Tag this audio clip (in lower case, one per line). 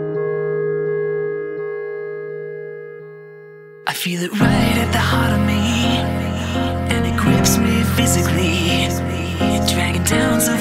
music